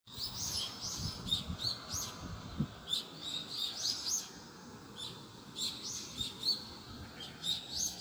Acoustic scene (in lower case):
park